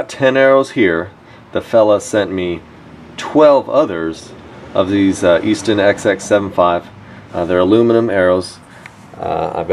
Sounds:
Speech

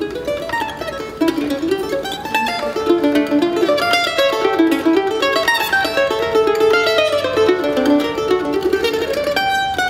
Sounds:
Guitar, Mandolin, Musical instrument, Music, Plucked string instrument

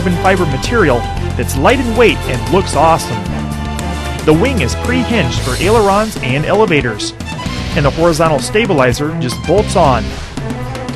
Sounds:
Speech, Music

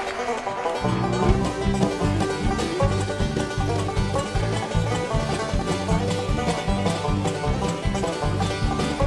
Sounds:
playing banjo

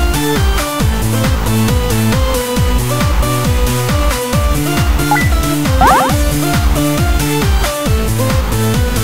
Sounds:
Music

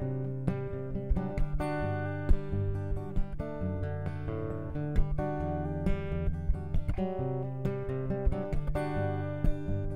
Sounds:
Music

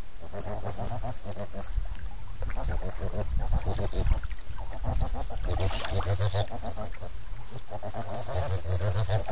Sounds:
Water

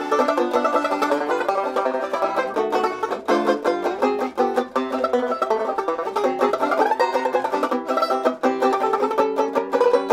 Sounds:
playing banjo, Banjo, Country, Plucked string instrument, Musical instrument, Music

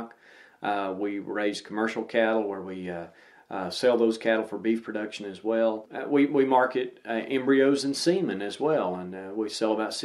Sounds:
Speech

